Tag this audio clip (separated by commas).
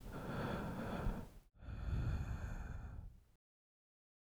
Breathing, Respiratory sounds